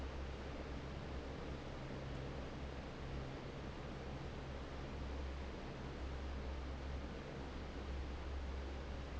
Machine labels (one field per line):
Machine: fan